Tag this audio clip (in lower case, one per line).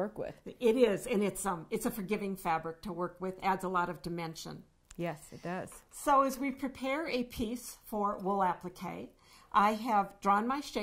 speech